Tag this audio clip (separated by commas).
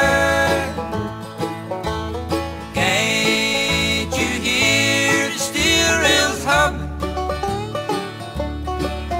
Music